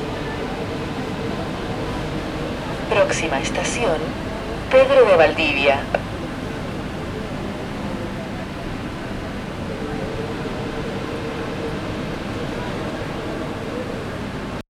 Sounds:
Vehicle, Rail transport, Subway

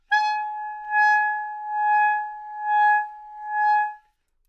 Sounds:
Musical instrument, Music, woodwind instrument

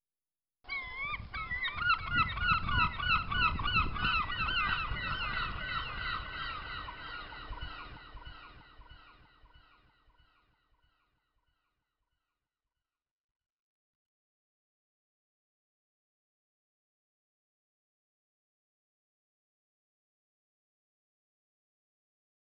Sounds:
seagull, Animal, Bird, Wild animals

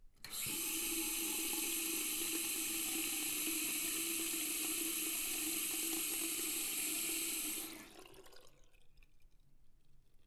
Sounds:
Domestic sounds, Sink (filling or washing)

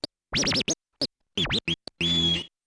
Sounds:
Scratching (performance technique), Musical instrument, Music

